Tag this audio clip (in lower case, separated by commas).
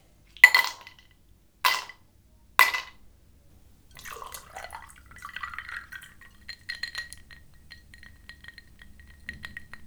water, liquid